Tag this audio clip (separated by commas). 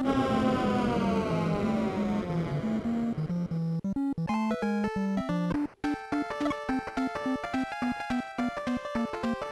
Music